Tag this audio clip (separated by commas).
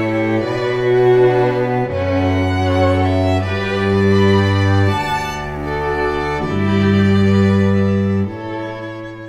Music